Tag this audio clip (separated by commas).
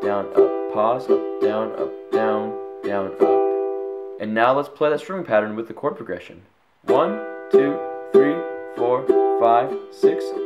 playing ukulele